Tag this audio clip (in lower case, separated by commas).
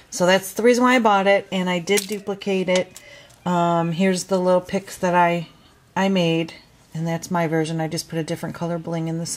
speech